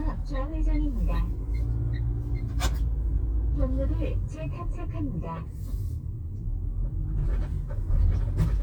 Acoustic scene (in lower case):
car